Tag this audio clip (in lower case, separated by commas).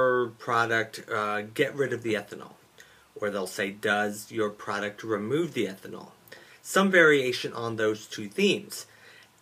speech